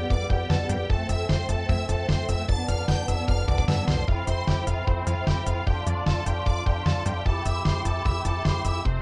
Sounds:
Music, Video game music, Soundtrack music

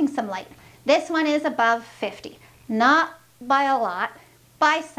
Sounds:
Speech

